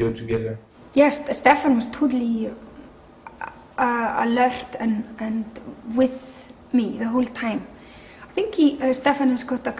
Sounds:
woman speaking

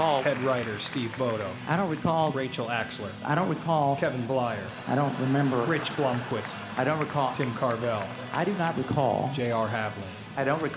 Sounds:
music
speech

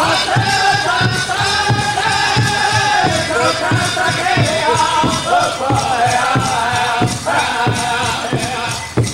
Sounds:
speech
music

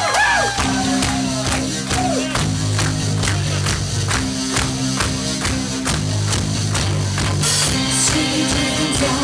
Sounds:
music

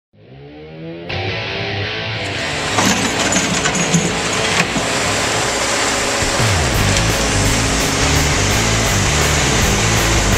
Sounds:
music
outside, rural or natural
engine

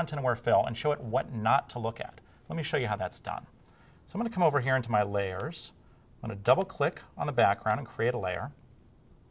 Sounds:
speech

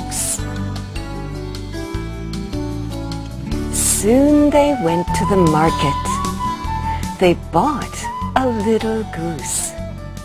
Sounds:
speech
music

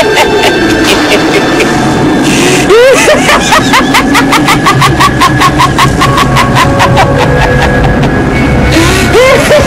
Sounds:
music

